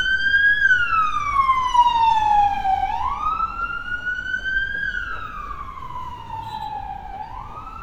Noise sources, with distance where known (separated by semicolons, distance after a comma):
car horn; siren, near